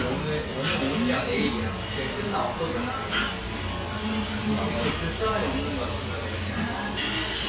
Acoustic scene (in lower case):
cafe